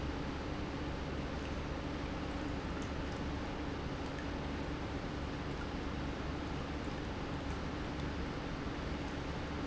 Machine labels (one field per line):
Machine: pump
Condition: normal